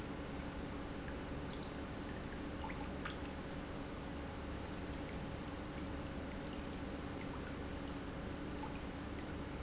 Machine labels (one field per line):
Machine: pump